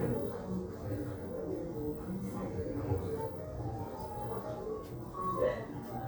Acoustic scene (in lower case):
crowded indoor space